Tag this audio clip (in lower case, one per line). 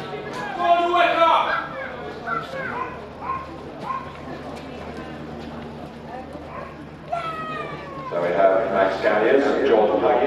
inside a public space
speech